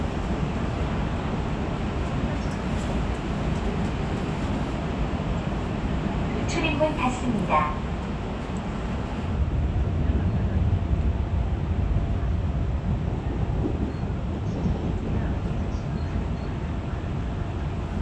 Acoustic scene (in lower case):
subway train